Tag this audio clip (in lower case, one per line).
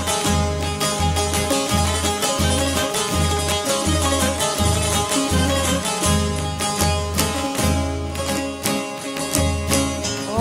plucked string instrument
music